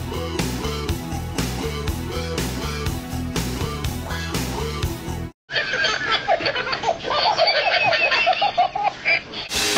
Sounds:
inside a small room, music, inside a large room or hall, baby laughter

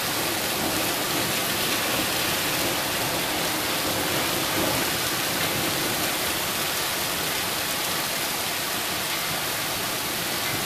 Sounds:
rain

